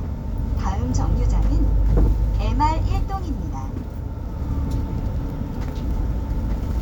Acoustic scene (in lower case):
bus